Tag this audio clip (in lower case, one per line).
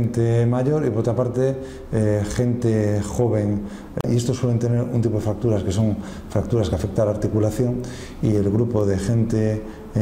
speech